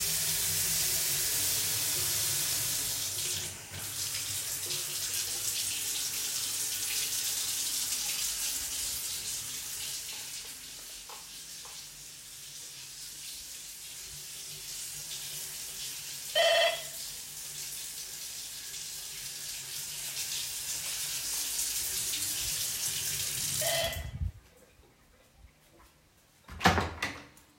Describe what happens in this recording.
Water is running. The doorbell rings. The doorbell rings again, and i turn of the water. I open the door.